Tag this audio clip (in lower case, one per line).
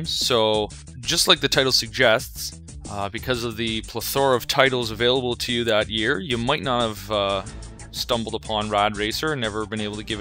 speech
music